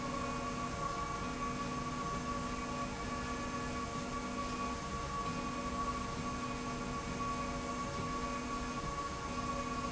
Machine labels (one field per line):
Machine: slide rail